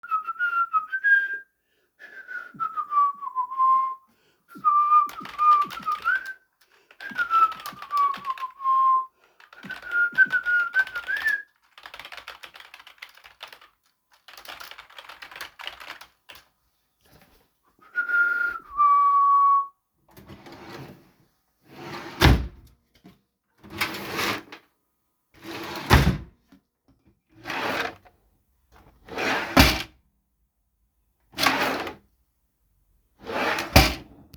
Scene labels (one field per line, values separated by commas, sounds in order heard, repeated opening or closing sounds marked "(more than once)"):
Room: bedroom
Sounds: keyboard typing, wardrobe or drawer (more than once)